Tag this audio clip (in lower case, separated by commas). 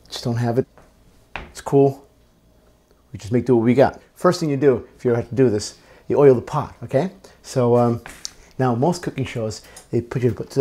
speech